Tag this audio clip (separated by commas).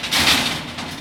Tools